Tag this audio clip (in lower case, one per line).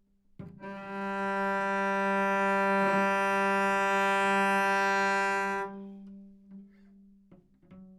bowed string instrument
musical instrument
music